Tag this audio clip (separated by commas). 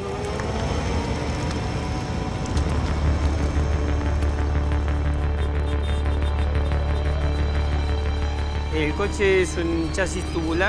Speech, Music